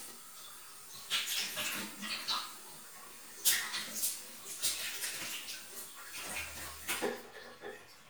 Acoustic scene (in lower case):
restroom